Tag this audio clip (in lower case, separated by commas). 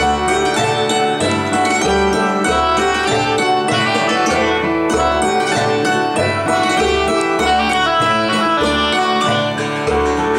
keyboard (musical), music